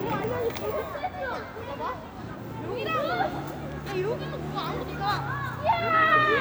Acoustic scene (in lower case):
residential area